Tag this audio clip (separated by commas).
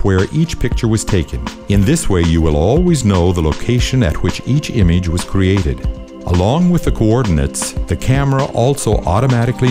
Speech